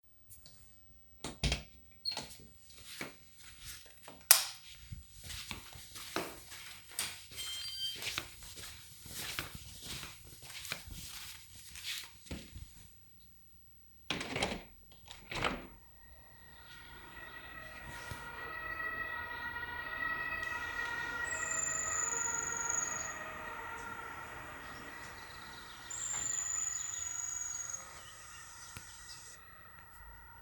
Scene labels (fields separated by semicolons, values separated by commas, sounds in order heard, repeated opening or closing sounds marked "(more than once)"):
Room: kitchen; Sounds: door, footsteps, light switch, window